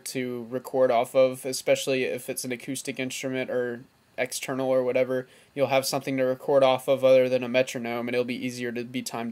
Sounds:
speech

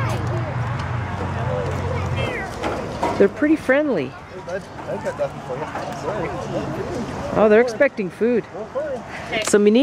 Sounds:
speech
footsteps

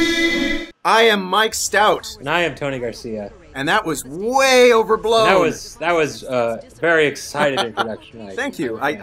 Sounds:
speech

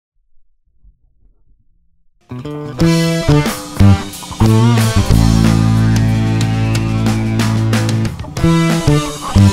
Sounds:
bass guitar
plucked string instrument
musical instrument
playing bass guitar
music
guitar

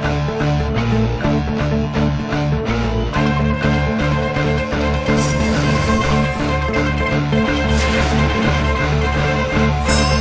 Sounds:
acoustic guitar
guitar
playing electric guitar
plucked string instrument
music
electric guitar
musical instrument

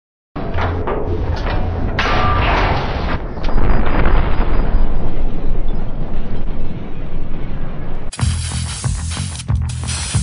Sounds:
music

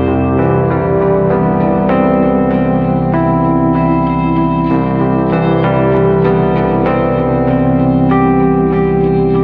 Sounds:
music

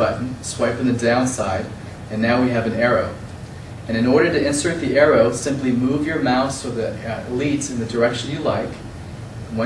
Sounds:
speech

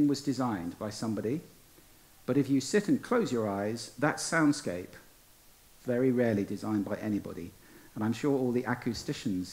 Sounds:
speech

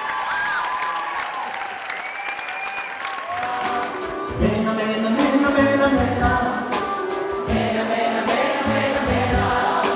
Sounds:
soul music
music
soundtrack music

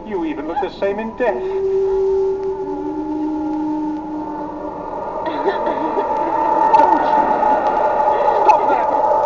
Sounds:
music
speech

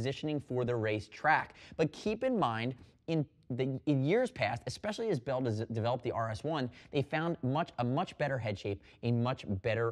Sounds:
speech

